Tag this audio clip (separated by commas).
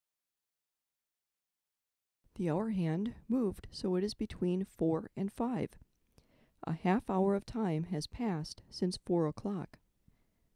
Speech